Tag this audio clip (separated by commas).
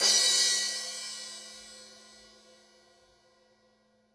Cymbal, Percussion, Crash cymbal, Musical instrument, Music